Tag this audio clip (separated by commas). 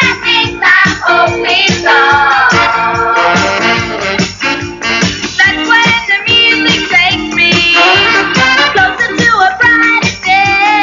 Music